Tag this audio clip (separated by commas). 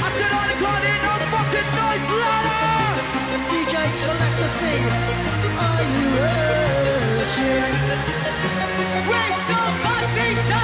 Music, Techno, Electronic music